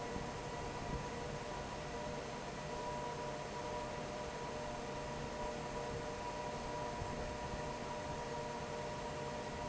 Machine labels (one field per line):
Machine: fan